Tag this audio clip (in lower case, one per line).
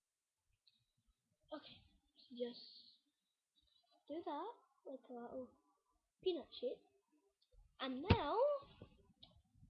speech